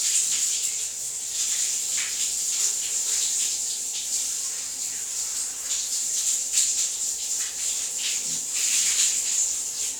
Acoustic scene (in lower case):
restroom